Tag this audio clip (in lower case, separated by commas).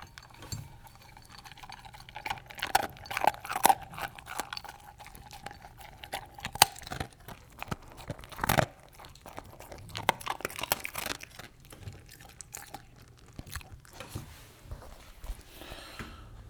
chewing, dog, domestic animals, animal